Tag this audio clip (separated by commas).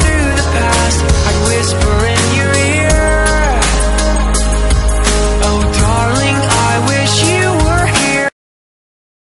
Music